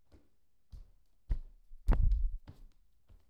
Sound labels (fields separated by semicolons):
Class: footsteps; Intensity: low